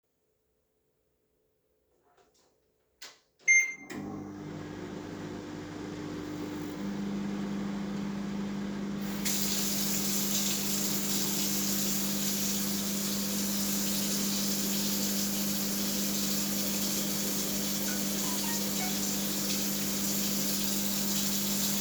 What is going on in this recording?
I heated up something in the microwave while washing my hands in the sink and receiving a message on my phone